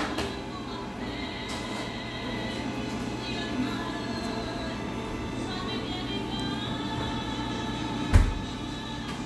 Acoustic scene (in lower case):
cafe